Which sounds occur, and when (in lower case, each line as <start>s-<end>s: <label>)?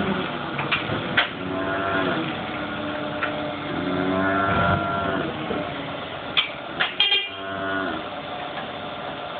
0.0s-9.3s: mechanisms
7.0s-7.3s: vehicle horn
8.6s-8.6s: generic impact sounds